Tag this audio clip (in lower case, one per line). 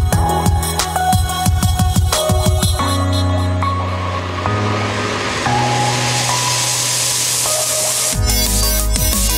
music
drum and bass